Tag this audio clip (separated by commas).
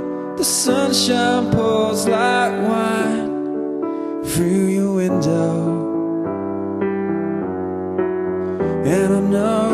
Musical instrument, Music